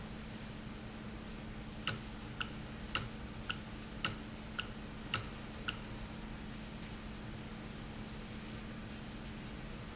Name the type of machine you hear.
valve